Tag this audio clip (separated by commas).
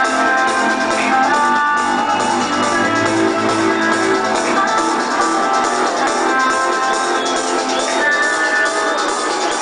Electronic music, Techno, Music